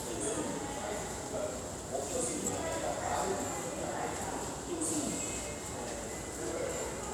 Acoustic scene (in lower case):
subway station